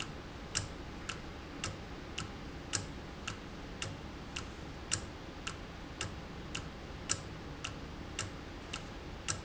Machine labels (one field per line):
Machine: valve